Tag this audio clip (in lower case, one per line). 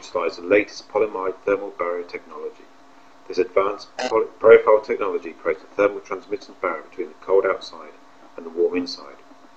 speech